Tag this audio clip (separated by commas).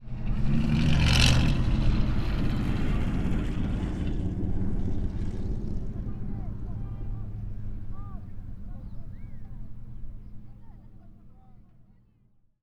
revving, Engine